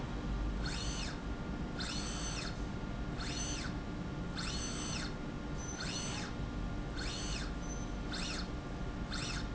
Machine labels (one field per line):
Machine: slide rail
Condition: normal